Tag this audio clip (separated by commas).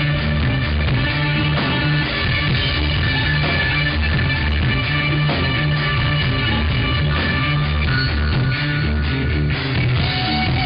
Musical instrument, Music, fiddle, Cello